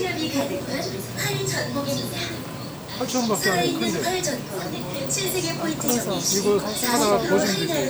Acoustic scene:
crowded indoor space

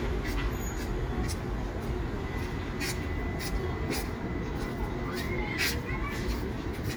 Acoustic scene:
residential area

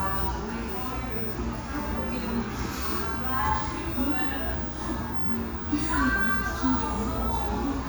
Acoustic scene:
restaurant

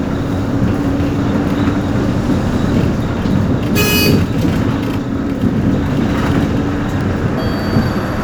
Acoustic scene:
bus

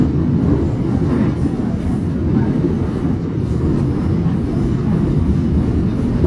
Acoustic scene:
subway train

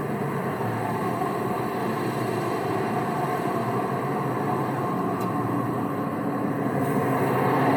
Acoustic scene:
street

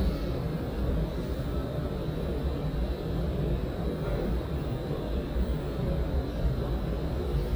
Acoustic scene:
subway station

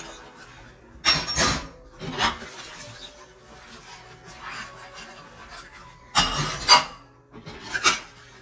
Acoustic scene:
kitchen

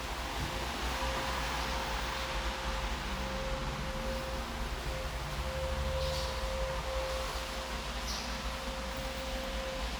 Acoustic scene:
elevator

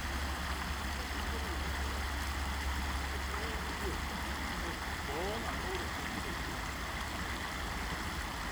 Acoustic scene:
park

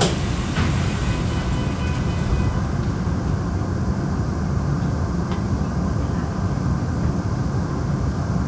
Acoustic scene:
subway train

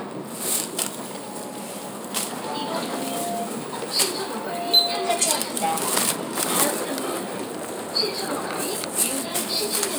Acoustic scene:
bus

